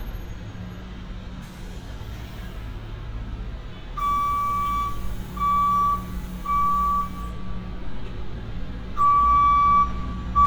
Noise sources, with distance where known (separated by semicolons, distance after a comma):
reverse beeper, near